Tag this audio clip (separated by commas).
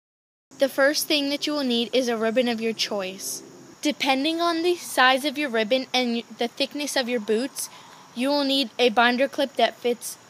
Speech